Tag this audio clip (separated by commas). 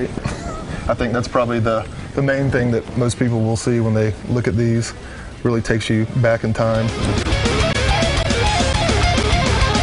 Guitar, Electric guitar, Music, Musical instrument, Plucked string instrument, Speech